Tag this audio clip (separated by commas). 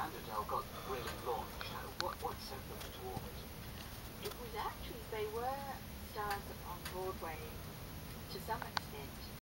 Speech